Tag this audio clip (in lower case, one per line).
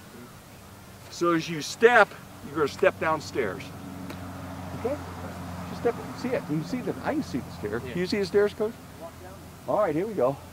speech